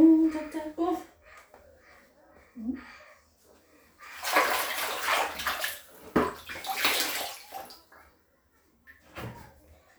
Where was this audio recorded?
in a restroom